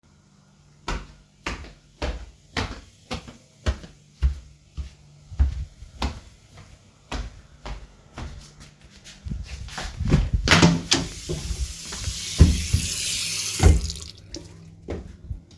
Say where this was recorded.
living room, bathroom